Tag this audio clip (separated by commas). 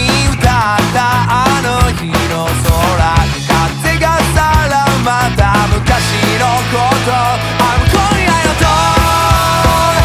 Music